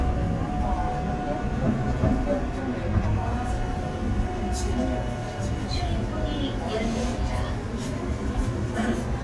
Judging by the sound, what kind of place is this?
subway train